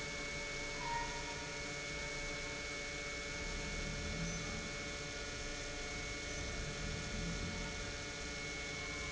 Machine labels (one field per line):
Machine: pump